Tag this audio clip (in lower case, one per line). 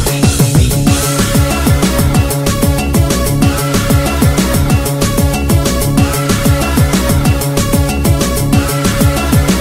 disco
house music
music